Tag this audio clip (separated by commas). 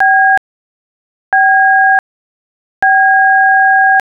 Alarm, Telephone